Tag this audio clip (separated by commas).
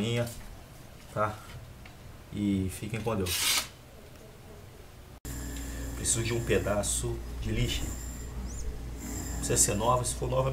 sharpen knife